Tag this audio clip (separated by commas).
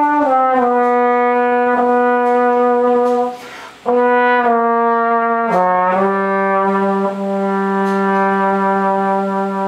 Trombone, playing trombone, Brass instrument